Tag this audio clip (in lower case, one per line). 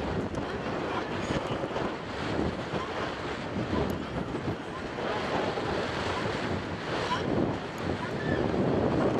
sea lion barking